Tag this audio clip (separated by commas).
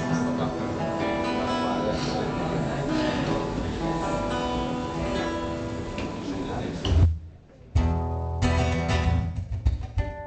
Speech, Music